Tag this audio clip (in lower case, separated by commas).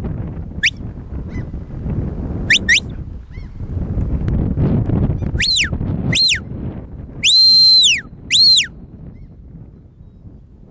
animal, outside, rural or natural